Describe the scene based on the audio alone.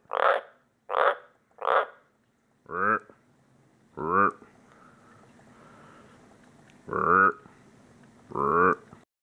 A frog croaks several times, followed by a human making imitation frog noises several times